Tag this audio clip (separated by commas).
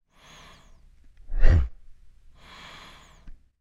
Respiratory sounds, Breathing